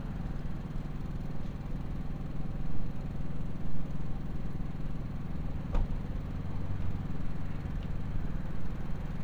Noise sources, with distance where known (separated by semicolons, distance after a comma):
small-sounding engine